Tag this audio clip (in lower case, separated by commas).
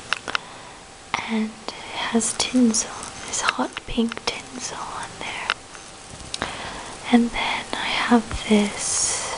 whispering, speech